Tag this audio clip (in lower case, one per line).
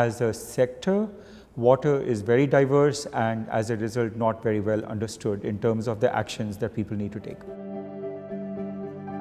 music
speech